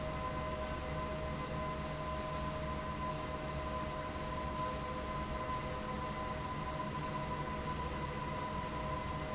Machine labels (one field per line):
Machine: fan